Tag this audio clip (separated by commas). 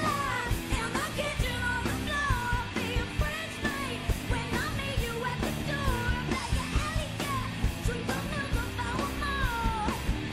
Funk, Music